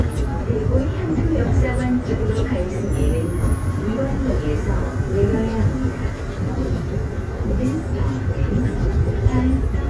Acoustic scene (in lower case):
subway train